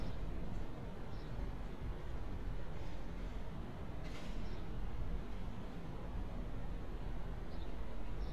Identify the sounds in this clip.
background noise